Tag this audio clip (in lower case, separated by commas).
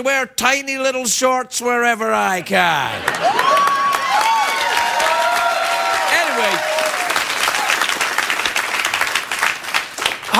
speech